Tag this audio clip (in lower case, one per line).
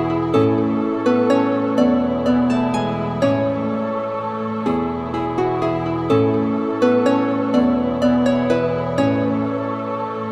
music
soundtrack music